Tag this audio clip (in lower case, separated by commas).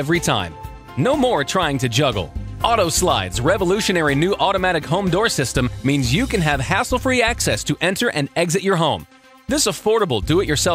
music, speech